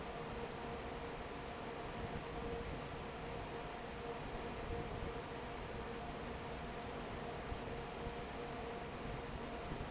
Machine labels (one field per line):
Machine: fan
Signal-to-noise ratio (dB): 6 dB